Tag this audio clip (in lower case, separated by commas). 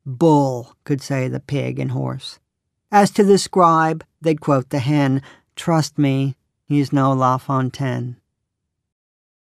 speech